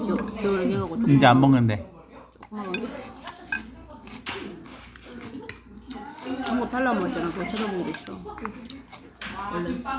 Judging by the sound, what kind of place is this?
restaurant